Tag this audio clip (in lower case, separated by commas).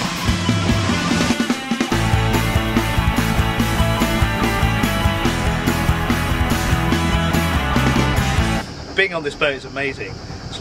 music, speech